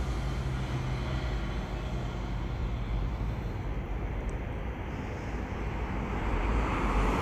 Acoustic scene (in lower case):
street